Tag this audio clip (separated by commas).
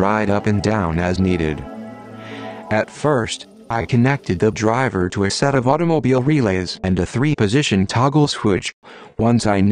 Music, Speech